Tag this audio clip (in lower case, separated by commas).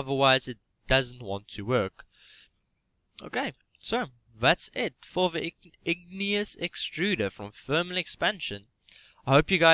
speech